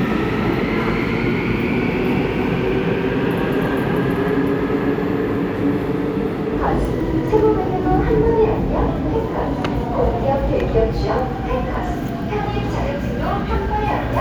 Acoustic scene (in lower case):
subway station